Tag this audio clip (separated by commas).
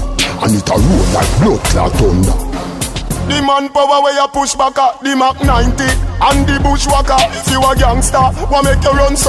Music, Speech